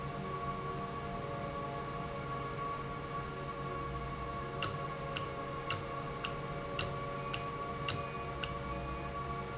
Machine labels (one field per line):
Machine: valve